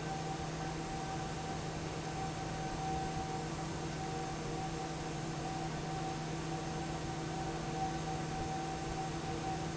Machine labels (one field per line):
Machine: fan